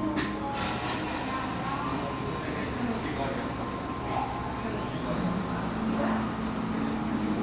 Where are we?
in a cafe